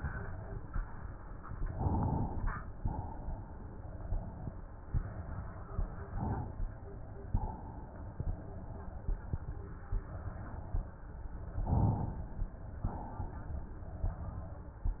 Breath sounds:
1.70-2.79 s: inhalation
2.79-4.50 s: exhalation
6.11-7.37 s: inhalation
7.37-8.55 s: exhalation
11.63-12.81 s: inhalation
12.81-14.08 s: exhalation

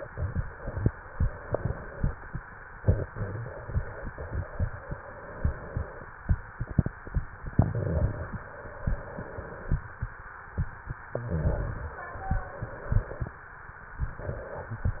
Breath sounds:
0.92-2.21 s: inhalation
2.51-4.10 s: exhalation
4.14-6.07 s: inhalation
7.46-8.32 s: exhalation
8.36-9.85 s: inhalation
10.31-11.82 s: exhalation
11.80-13.37 s: inhalation
13.97-15.00 s: exhalation

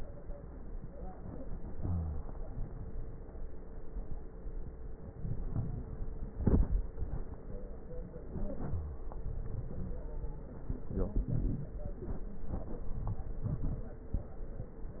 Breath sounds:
5.10-5.94 s: inhalation
5.10-5.94 s: crackles
8.22-9.11 s: inhalation
8.29-9.06 s: wheeze
9.12-10.47 s: exhalation
9.12-10.47 s: crackles

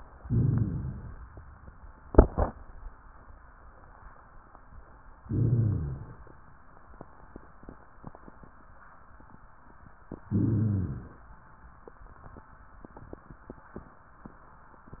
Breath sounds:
0.20-1.18 s: inhalation
0.25-1.16 s: rhonchi
5.25-6.17 s: rhonchi
5.27-6.37 s: inhalation
10.27-11.11 s: rhonchi
10.29-11.24 s: inhalation

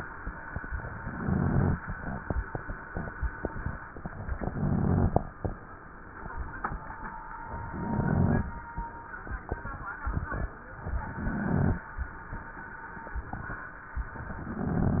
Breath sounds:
0.99-1.77 s: inhalation
0.99-1.77 s: crackles
4.40-5.18 s: inhalation
4.40-5.18 s: crackles
7.68-8.46 s: inhalation
7.68-8.46 s: crackles
11.02-11.80 s: inhalation
11.02-11.80 s: crackles
14.29-15.00 s: inhalation
14.29-15.00 s: crackles

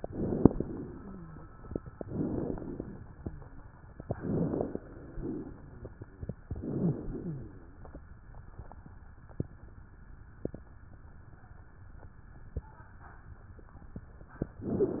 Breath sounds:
0.00-0.91 s: inhalation
0.97-1.50 s: wheeze
2.03-2.98 s: inhalation
3.32-3.66 s: wheeze
4.00-4.84 s: inhalation
6.47-7.06 s: inhalation
6.79-7.06 s: wheeze
7.09-7.69 s: exhalation
7.19-7.53 s: wheeze

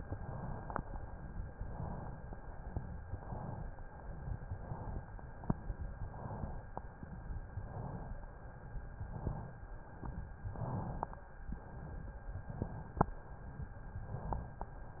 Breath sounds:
0.00-0.78 s: inhalation
1.44-2.22 s: inhalation
2.98-3.76 s: inhalation
4.32-5.10 s: inhalation
6.04-6.91 s: inhalation
7.48-8.35 s: inhalation
8.88-9.75 s: inhalation
10.45-11.32 s: inhalation
11.45-12.23 s: exhalation
12.27-13.05 s: inhalation
13.96-14.74 s: inhalation

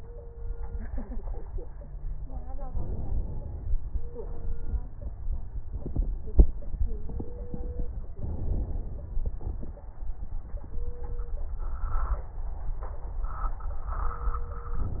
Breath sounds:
2.67-3.79 s: inhalation
8.17-9.22 s: inhalation

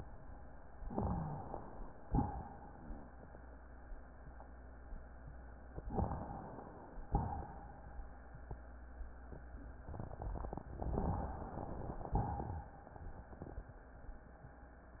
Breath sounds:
0.86-1.91 s: inhalation
0.86-1.91 s: crackles
2.07-3.15 s: exhalation
5.91-7.02 s: inhalation
5.91-7.02 s: crackles
7.10-7.95 s: exhalation
10.91-11.98 s: inhalation
10.91-11.98 s: crackles
12.14-12.88 s: exhalation

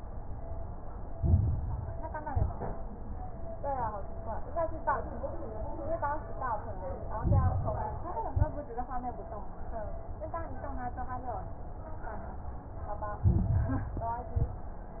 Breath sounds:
1.08-2.14 s: inhalation
1.08-2.14 s: crackles
2.20-2.89 s: exhalation
2.20-2.89 s: crackles
7.11-8.17 s: inhalation
7.11-8.17 s: crackles
8.21-8.74 s: exhalation
8.21-8.74 s: crackles
13.21-14.27 s: inhalation
13.21-14.27 s: crackles
14.33-14.72 s: exhalation
14.33-14.72 s: crackles

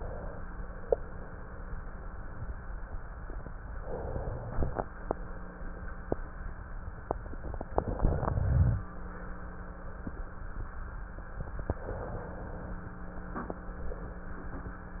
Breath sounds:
3.78-4.89 s: inhalation
4.89-6.18 s: exhalation
7.70-8.83 s: inhalation
8.83-10.18 s: exhalation
11.78-12.85 s: inhalation
12.85-14.78 s: exhalation

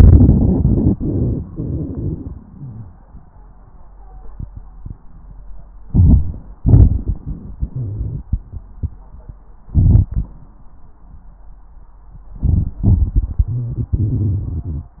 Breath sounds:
5.86-6.59 s: crackles
5.87-6.64 s: inhalation
6.60-8.45 s: exhalation
6.60-8.45 s: crackles
9.64-10.38 s: inhalation
9.64-10.38 s: crackles
12.25-12.79 s: crackles
12.31-12.82 s: inhalation
12.82-14.95 s: exhalation
12.82-14.95 s: crackles

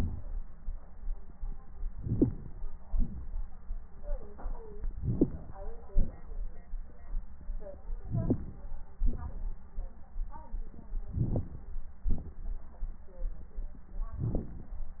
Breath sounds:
1.88-2.56 s: inhalation
2.88-3.23 s: exhalation
5.01-5.56 s: inhalation
5.90-6.21 s: exhalation
8.06-8.63 s: inhalation
9.03-9.51 s: exhalation
11.16-11.73 s: inhalation
12.12-12.43 s: exhalation
14.25-14.76 s: inhalation

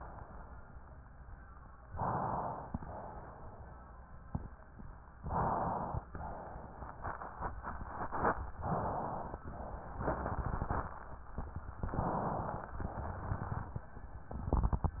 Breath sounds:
1.80-2.68 s: inhalation
2.68-3.83 s: exhalation
5.20-6.11 s: inhalation
6.07-7.08 s: exhalation
8.63-9.37 s: inhalation
9.47-10.07 s: exhalation
11.86-12.69 s: inhalation
12.81-13.89 s: exhalation

